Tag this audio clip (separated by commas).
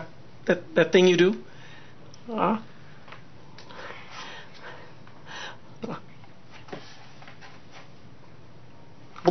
Speech